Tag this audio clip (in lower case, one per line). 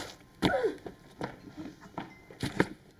run